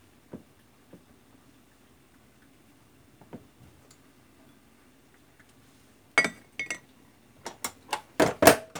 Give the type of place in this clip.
kitchen